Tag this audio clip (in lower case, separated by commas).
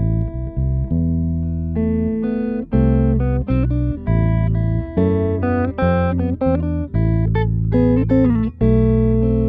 guitar, plucked string instrument, bass guitar, music, musical instrument